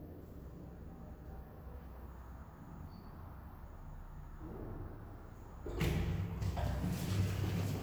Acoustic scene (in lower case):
elevator